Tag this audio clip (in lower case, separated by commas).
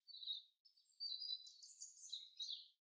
bird vocalization, bird, chirp, wild animals, animal